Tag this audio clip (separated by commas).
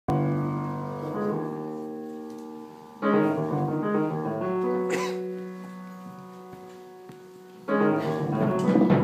Music, Jazz, Musical instrument